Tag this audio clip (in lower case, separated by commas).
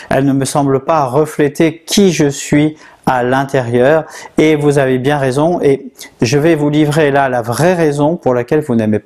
speech